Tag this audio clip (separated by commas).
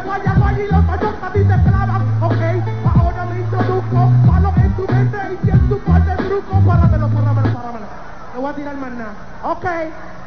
Music